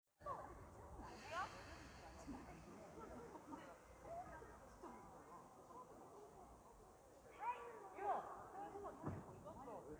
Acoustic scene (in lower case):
park